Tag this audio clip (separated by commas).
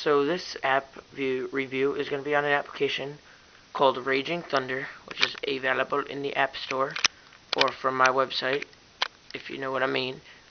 Speech